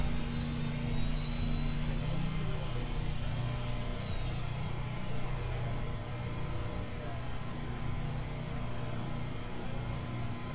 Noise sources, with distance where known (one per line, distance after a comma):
unidentified powered saw